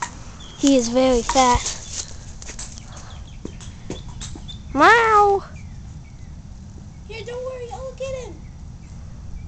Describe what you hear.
Small boy speaking and making animal sounds